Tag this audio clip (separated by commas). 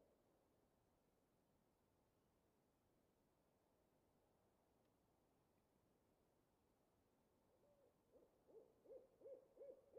owl hooting